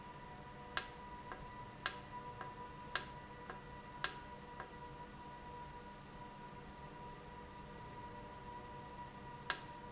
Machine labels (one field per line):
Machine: valve